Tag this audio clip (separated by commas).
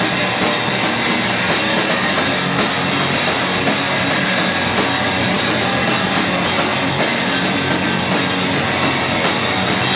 Rock music, Music, Guitar, Bowed string instrument, Musical instrument